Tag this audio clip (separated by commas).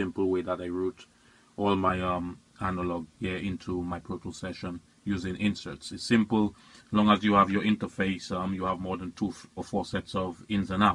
Speech